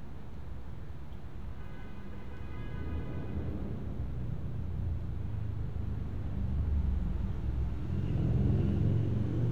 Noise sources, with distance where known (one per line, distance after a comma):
medium-sounding engine
car horn, far